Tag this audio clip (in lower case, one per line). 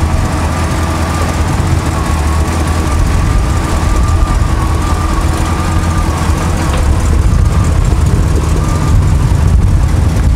car
vehicle
motor vehicle (road)